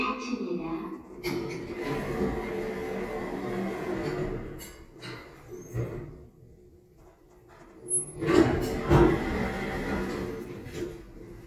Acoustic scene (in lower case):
elevator